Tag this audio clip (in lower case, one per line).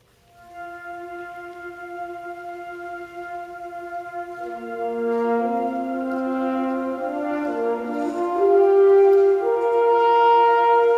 orchestra
musical instrument
music